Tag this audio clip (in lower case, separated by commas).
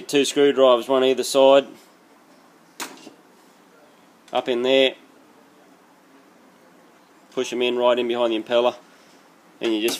speech